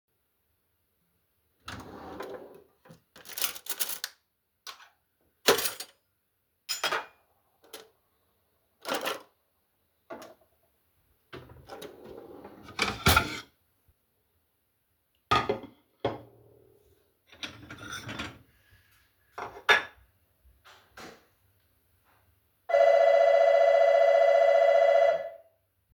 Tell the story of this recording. I was emptying the dishwasher and sorting the cutlery and dishes, after that someone rang the doorbell.